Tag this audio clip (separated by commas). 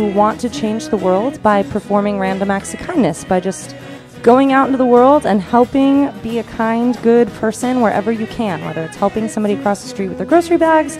Background music, Speech, Music